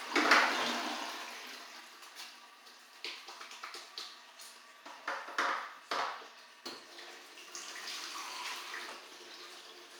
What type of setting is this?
restroom